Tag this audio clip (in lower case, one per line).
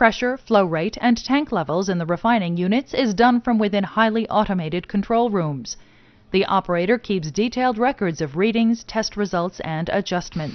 speech